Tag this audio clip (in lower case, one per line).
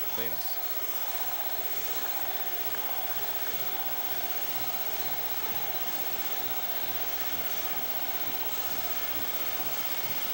speech